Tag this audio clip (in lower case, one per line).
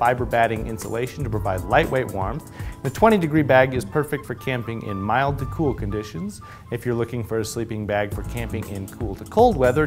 speech
music